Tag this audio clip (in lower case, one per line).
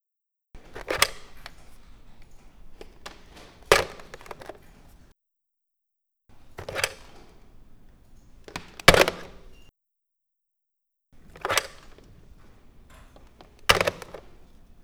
telephone
alarm